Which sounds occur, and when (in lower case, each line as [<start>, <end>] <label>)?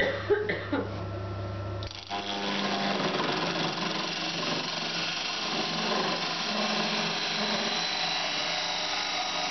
[0.00, 0.92] cough
[0.00, 9.50] mechanisms
[0.85, 1.01] surface contact